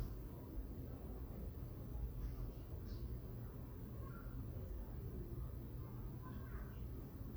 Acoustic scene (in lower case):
residential area